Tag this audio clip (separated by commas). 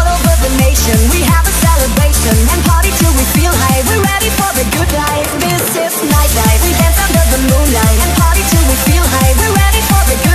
Techno, Music